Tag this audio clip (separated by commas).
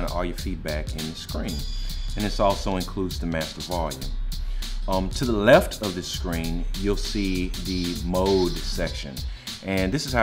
Drum machine, Music